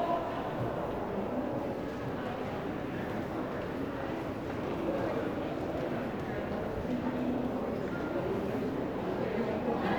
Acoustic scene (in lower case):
crowded indoor space